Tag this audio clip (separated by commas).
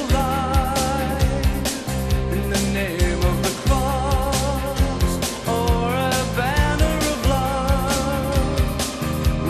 Music